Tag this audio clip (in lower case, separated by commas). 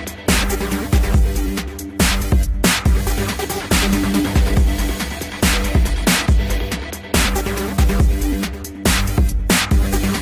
music, dubstep